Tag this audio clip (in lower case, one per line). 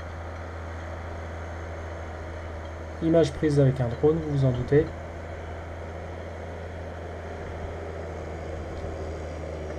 tractor digging